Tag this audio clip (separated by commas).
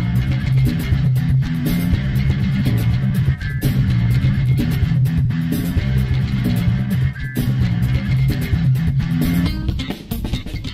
Music